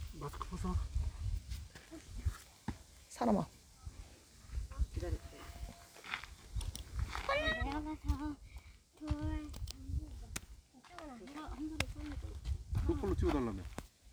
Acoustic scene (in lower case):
park